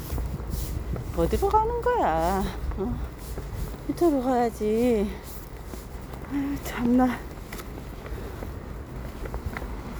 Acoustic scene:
residential area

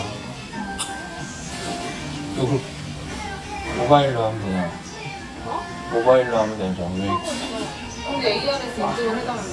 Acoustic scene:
restaurant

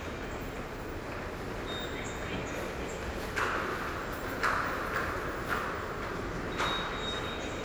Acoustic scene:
subway station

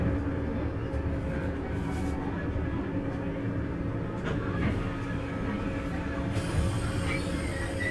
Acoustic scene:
bus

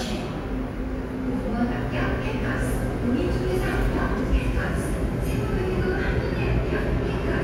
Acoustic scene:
subway station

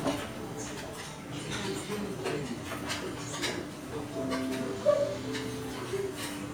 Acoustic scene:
restaurant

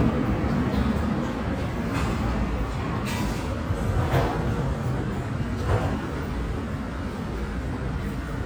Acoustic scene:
subway station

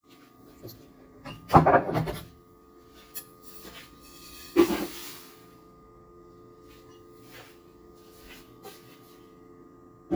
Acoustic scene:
kitchen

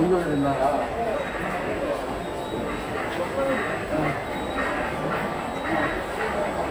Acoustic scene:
subway station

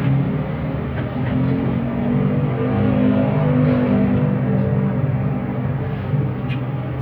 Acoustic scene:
bus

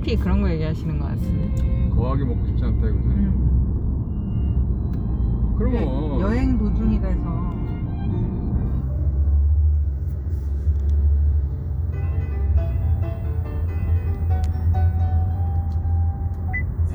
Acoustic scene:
car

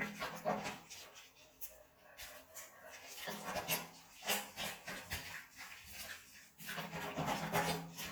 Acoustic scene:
restroom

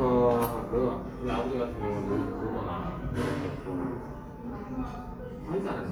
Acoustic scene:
restaurant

